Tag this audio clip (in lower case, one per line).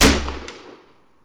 explosion
gunshot